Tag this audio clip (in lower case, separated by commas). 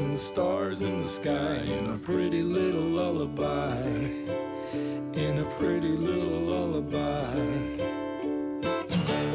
music, lullaby